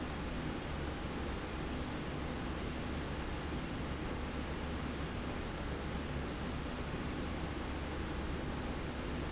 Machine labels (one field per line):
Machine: slide rail